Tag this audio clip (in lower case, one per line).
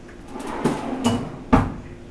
domestic sounds
drawer open or close